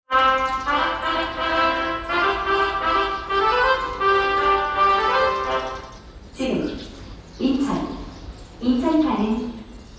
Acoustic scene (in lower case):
subway station